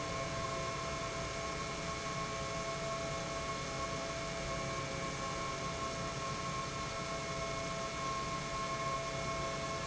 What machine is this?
pump